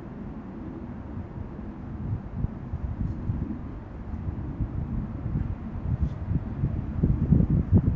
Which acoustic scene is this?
residential area